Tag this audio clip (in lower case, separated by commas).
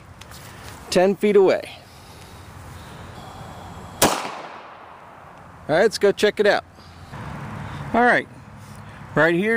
speech, outside, rural or natural